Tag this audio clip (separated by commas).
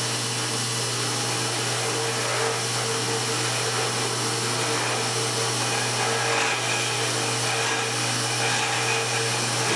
inside a small room